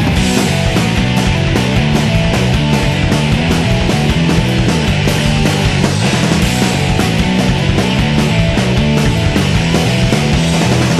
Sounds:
music

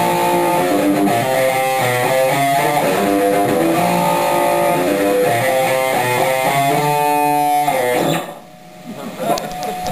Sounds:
guitar
musical instrument
strum
plucked string instrument
electric guitar
music

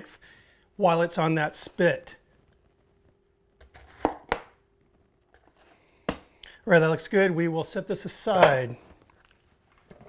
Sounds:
inside a small room
speech

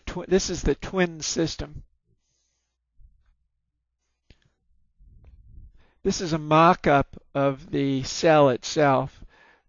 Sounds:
speech

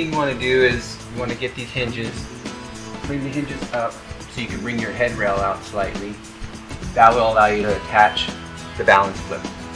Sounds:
speech
music

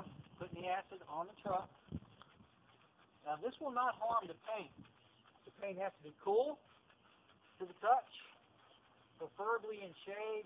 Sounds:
speech

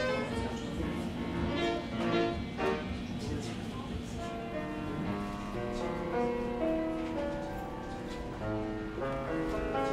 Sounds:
playing harpsichord

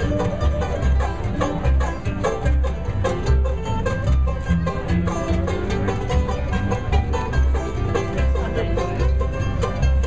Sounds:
speech
country
music

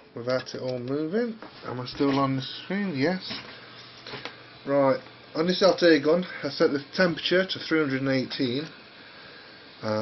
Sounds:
speech

